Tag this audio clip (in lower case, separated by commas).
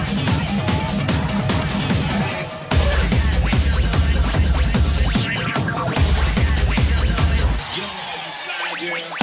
techno, electronic music, music, speech